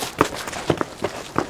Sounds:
Run, footsteps

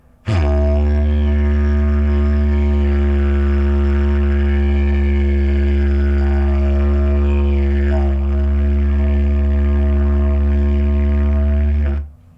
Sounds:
Musical instrument, Music

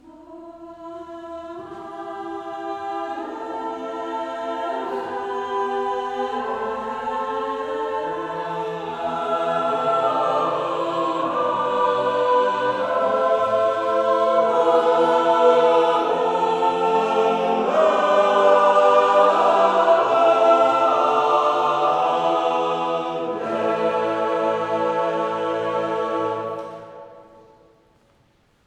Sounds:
Human voice, Female singing, Singing, Male singing, Music, Musical instrument

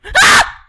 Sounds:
Shout, Yell, Human voice, Screaming

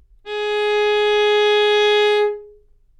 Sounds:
Bowed string instrument, Music, Musical instrument

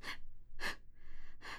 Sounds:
Respiratory sounds, Breathing

